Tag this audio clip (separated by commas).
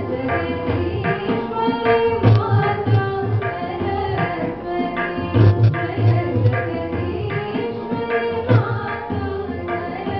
Music, Classical music